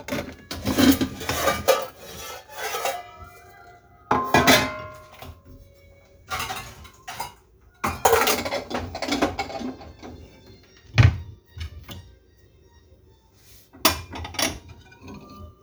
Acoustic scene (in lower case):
kitchen